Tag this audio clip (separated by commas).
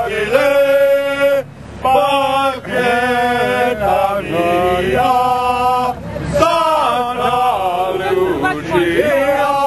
Male singing, Speech